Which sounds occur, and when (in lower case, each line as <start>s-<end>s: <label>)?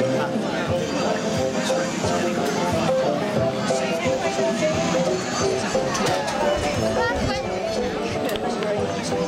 0.0s-1.2s: male speech
0.0s-9.2s: speech babble
0.0s-9.2s: mechanisms
0.0s-9.2s: mechanisms
0.0s-9.2s: music
1.5s-2.9s: male speech
1.6s-1.7s: tick
2.1s-2.1s: tick
3.5s-4.9s: woman speaking
5.3s-7.5s: woman speaking
5.6s-5.7s: tick
5.9s-6.4s: generic impact sounds
8.1s-8.8s: woman speaking
8.3s-8.4s: tick
8.6s-8.6s: tick
9.1s-9.1s: tick